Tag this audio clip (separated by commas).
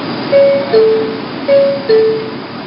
Subway, Rail transport, Vehicle